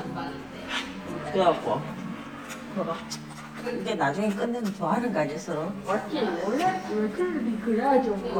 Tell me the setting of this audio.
crowded indoor space